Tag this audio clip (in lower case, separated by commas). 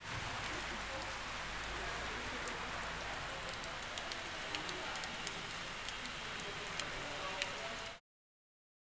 water, rain